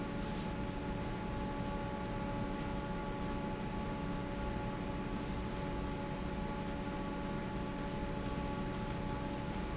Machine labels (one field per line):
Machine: fan